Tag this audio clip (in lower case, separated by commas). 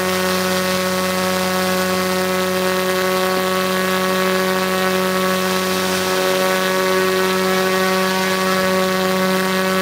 water vehicle, speedboat, motorboat, vehicle